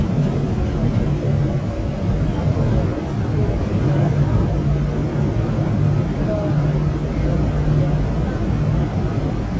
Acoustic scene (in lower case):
subway train